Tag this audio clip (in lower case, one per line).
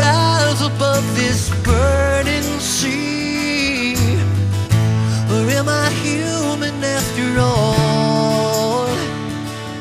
music